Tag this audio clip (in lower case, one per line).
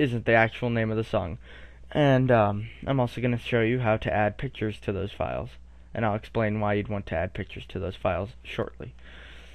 speech